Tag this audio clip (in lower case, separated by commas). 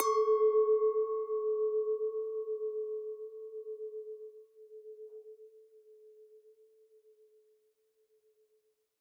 glass, clink